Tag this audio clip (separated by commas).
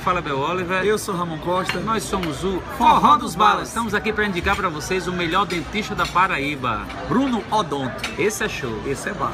Speech